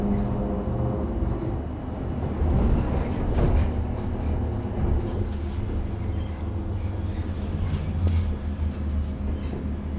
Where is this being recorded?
on a bus